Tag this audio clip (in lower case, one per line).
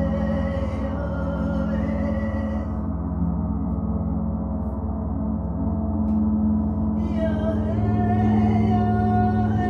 playing gong